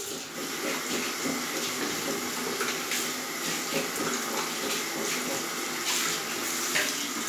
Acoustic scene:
restroom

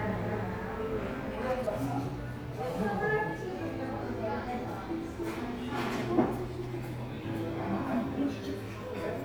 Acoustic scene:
crowded indoor space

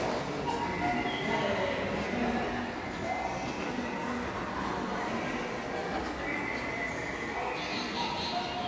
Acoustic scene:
subway station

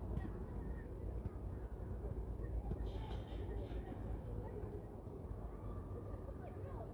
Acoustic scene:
residential area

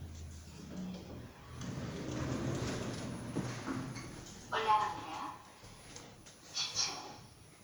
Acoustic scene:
elevator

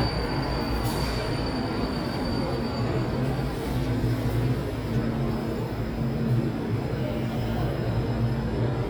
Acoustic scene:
subway station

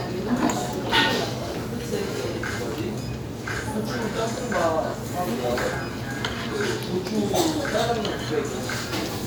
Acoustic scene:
restaurant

